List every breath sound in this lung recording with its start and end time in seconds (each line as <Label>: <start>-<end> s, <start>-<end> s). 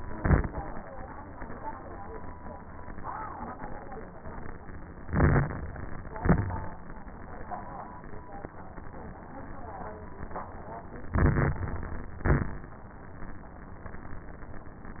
Inhalation: 5.02-5.77 s, 11.12-12.04 s
Exhalation: 0.00-0.60 s, 6.10-6.86 s, 12.20-12.77 s
Crackles: 0.00-0.60 s, 5.02-5.77 s, 6.10-6.86 s, 11.12-12.04 s, 12.20-12.77 s